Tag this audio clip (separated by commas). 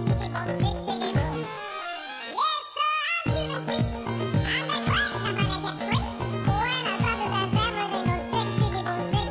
Music